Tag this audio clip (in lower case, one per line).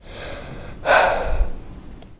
human voice
sigh